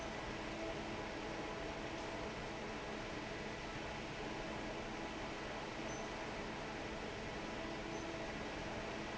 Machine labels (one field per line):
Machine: fan